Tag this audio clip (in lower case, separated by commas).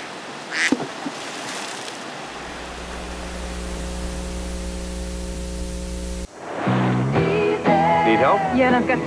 stream